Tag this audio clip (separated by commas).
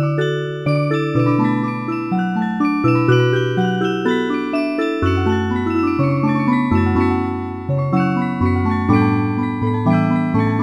Music